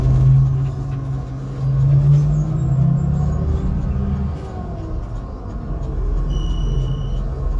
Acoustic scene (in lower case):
bus